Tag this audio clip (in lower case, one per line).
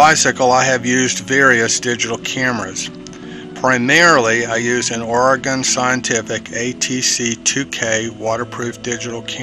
speech
music